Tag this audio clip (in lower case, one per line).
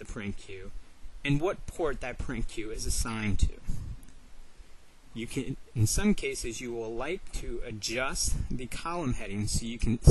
speech